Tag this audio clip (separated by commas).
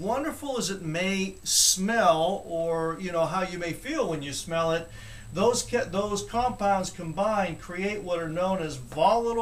Speech